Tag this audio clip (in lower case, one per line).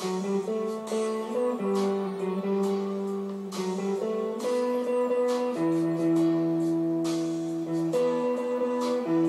music
acoustic guitar
electric guitar
strum
plucked string instrument
playing electric guitar
musical instrument
guitar